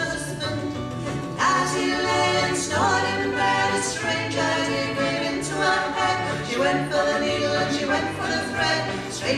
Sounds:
music

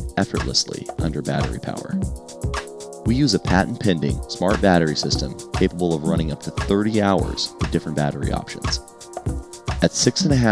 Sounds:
music
speech

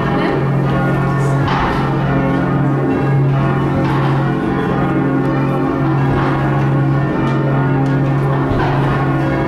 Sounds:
change ringing (campanology)

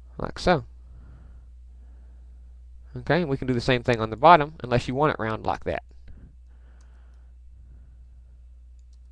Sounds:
speech
silence

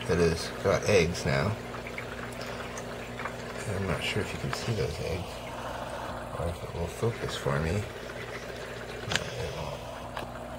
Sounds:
speech

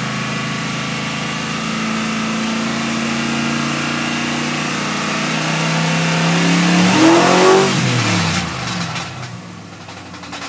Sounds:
medium engine (mid frequency)
vehicle
car

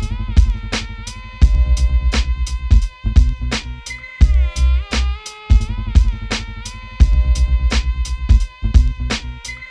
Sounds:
music

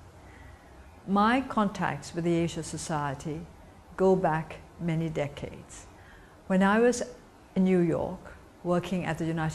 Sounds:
female speech
speech

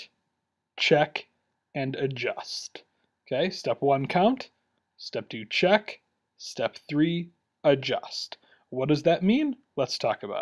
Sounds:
speech

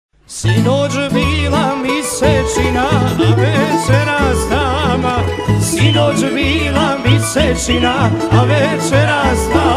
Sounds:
plucked string instrument
musical instrument
music
guitar

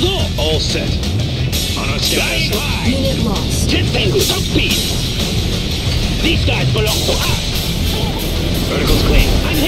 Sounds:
speech
music

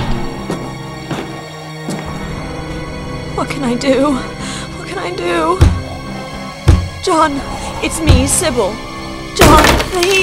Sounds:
music
speech

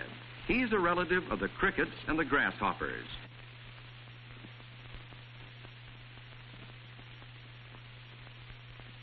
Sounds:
speech

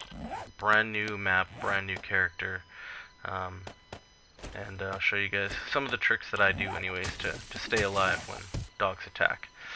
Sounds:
speech

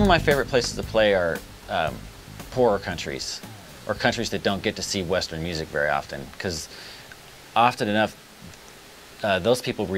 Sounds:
speech

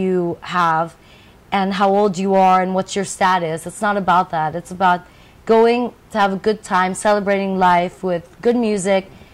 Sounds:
speech

